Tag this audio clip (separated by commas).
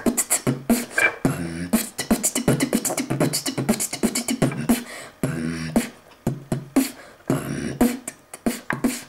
Music, Beatboxing